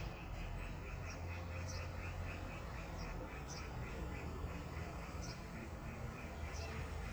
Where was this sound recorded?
in a residential area